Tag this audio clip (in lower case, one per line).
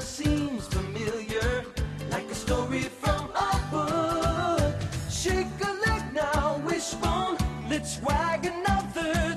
music